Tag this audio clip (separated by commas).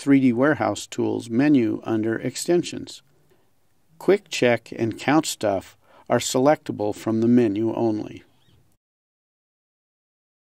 Speech